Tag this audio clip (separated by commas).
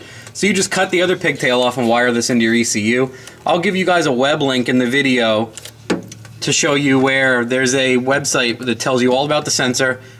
Speech